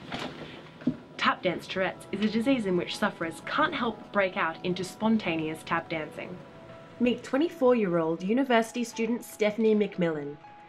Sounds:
Music, Speech

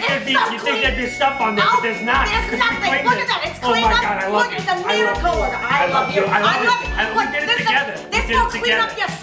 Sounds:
Speech, Music

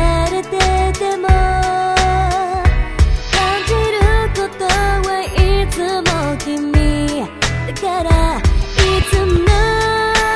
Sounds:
Music

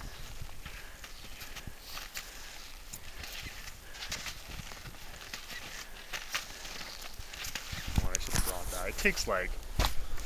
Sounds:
Speech

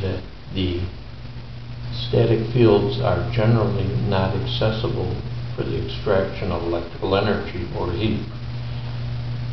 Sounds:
Speech

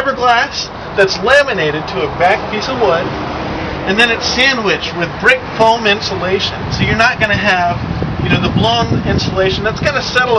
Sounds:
Speech, Vehicle

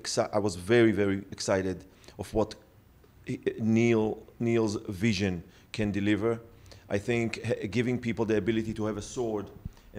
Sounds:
Speech

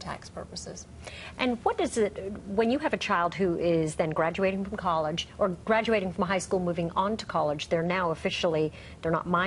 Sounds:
Conversation, Speech, woman speaking

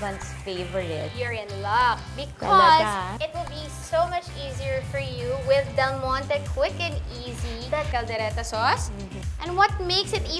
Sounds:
Speech, Music

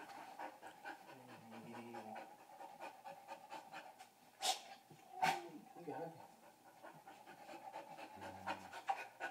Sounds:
Pant, Animal, Dog, Speech, pets

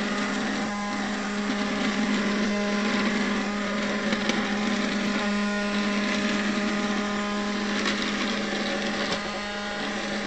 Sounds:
vacuum cleaner cleaning floors

